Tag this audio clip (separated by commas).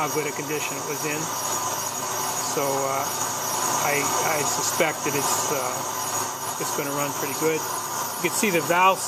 Tools, Speech, Engine